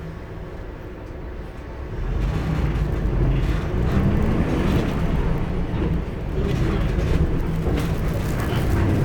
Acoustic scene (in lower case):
bus